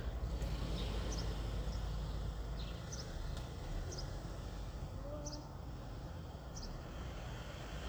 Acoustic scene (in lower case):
residential area